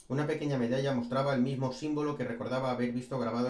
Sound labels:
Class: speech